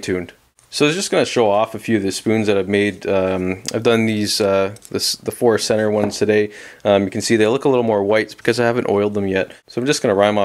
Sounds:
Speech

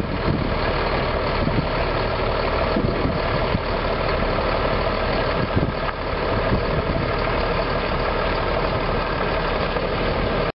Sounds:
Truck, Vehicle

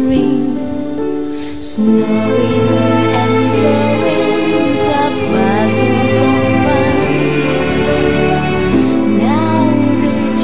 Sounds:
Music

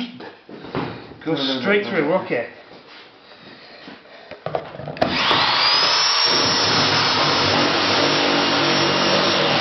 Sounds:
Speech

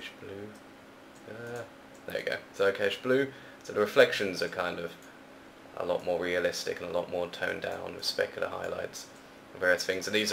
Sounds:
Speech

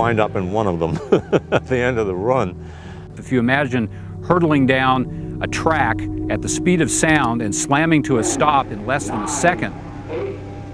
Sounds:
Speech, Music

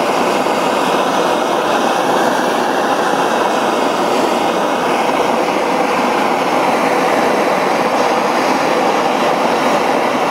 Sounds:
Steam

